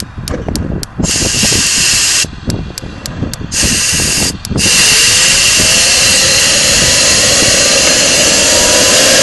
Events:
0.0s-0.8s: wind noise (microphone)
0.0s-9.2s: wind
0.2s-0.4s: tick
0.5s-0.6s: tick
0.8s-0.9s: tick
1.0s-2.0s: wind noise (microphone)
1.0s-2.3s: spray
2.2s-4.9s: wind noise (microphone)
2.4s-2.5s: tick
2.7s-2.8s: tick
3.0s-3.1s: tick
3.3s-3.4s: tick
3.5s-4.3s: spray
4.4s-4.5s: tick
4.6s-9.2s: spray

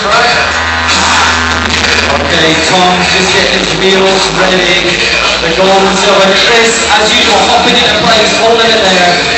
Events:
0.0s-0.5s: male singing
0.0s-9.3s: music
2.2s-9.3s: male singing

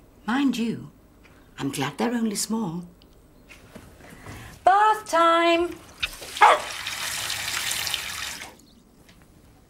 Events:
0.0s-9.6s: wind
0.2s-0.8s: female speech
1.2s-1.4s: generic impact sounds
1.6s-2.9s: female speech
3.0s-3.1s: human sounds
3.5s-3.8s: generic impact sounds
4.0s-4.3s: generic impact sounds
4.2s-4.6s: breathing
4.6s-5.8s: female speech
5.8s-8.7s: bathtub (filling or washing)
5.9s-8.5s: faucet
6.0s-6.1s: generic impact sounds
6.4s-6.7s: bark
8.6s-8.8s: bird song
9.1s-9.2s: tick

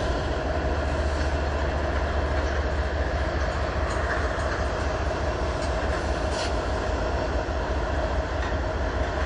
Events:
0.0s-9.2s: train
0.0s-9.2s: wind
1.8s-2.6s: generic impact sounds
3.5s-4.6s: generic impact sounds
5.5s-6.5s: generic impact sounds
8.4s-8.8s: generic impact sounds
9.1s-9.2s: generic impact sounds

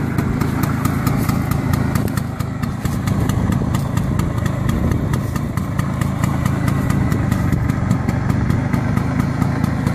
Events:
0.0s-9.9s: engine knocking
0.0s-9.9s: medium engine (mid frequency)
0.0s-9.9s: wind
0.4s-0.6s: surface contact
1.0s-1.3s: surface contact
1.1s-1.9s: wind noise (microphone)
2.0s-2.1s: tick
2.8s-2.9s: surface contact
3.0s-3.8s: wind noise (microphone)
3.7s-3.8s: tick
4.3s-5.2s: wind noise (microphone)
5.2s-5.4s: surface contact
6.7s-6.8s: surface contact
7.3s-7.5s: surface contact

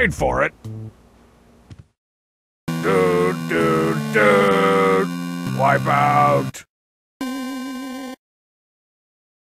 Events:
0.0s-0.5s: speech synthesizer
0.0s-1.9s: video game sound
0.3s-1.8s: background noise
0.6s-0.9s: music
1.6s-1.8s: generic impact sounds
2.6s-6.6s: video game sound
2.7s-6.5s: music
2.8s-3.3s: speech synthesizer
3.5s-4.0s: speech synthesizer
4.1s-4.2s: sound effect
4.1s-5.0s: speech synthesizer
5.4s-5.5s: sound effect
5.5s-6.6s: speech synthesizer
7.2s-8.1s: video game sound
7.2s-8.2s: sound effect

